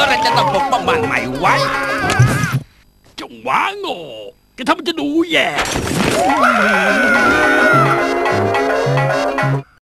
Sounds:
Speech, Music

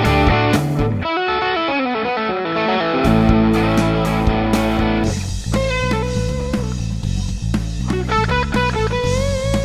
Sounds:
Musical instrument, Plucked string instrument, Effects unit, Electric guitar, Guitar, Music, Distortion

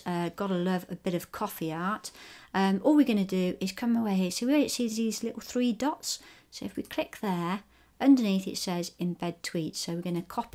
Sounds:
Speech

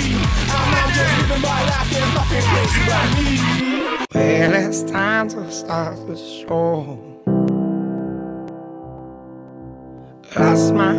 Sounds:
Pop music, Music

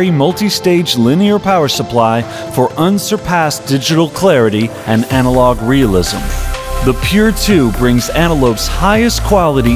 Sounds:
Speech, Music

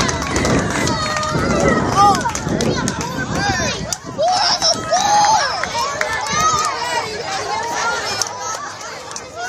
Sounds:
Speech

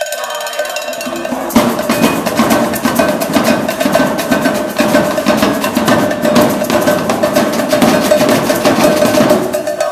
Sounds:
Percussion, Drum

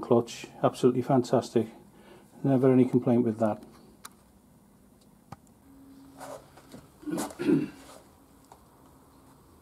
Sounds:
Speech

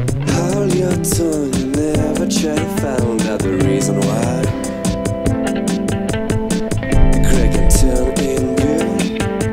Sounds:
Music

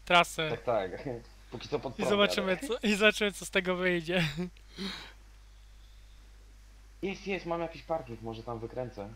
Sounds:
Speech

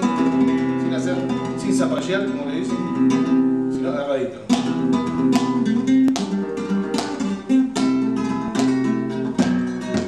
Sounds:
Musical instrument, Plucked string instrument, Acoustic guitar, Music, Guitar, Speech

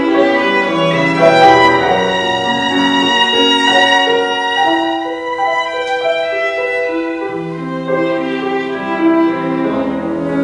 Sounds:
Music, fiddle, Musical instrument

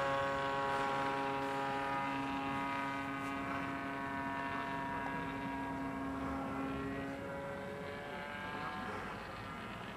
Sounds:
Speech

